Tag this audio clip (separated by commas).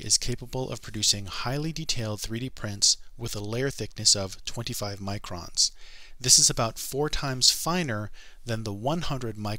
Speech